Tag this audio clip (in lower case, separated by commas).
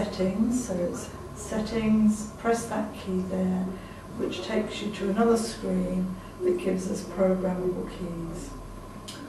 speech